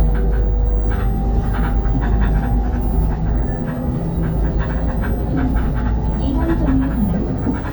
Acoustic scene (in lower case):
bus